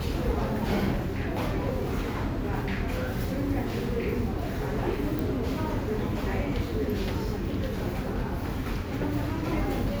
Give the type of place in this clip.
subway station